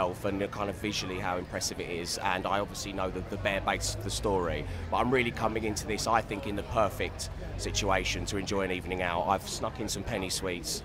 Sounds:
Speech

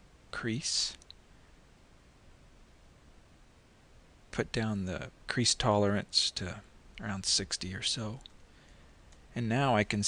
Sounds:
Speech

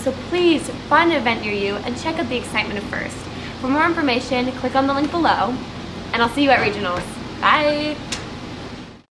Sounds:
Speech

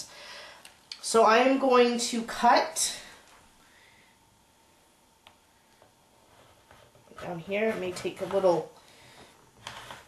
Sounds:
Speech, inside a small room

